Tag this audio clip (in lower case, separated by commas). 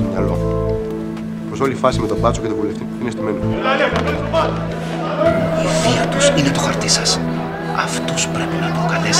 music, speech